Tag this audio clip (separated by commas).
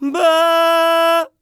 Singing, Male singing, Human voice